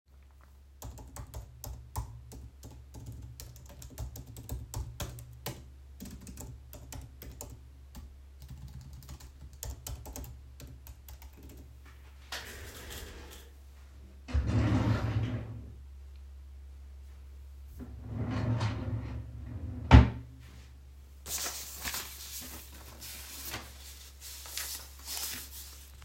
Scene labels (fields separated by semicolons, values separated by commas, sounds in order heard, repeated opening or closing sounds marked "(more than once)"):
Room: office; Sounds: footsteps, keyboard typing, wardrobe or drawer (more than once)